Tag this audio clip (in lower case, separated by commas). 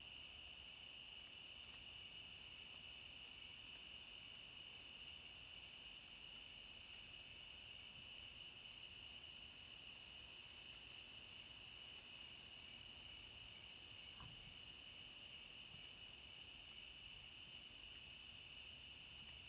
cricket, animal, wild animals, insect